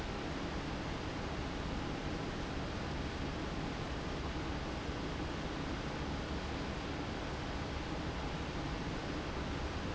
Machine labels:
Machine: fan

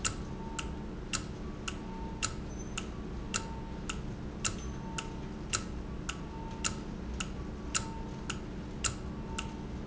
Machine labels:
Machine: valve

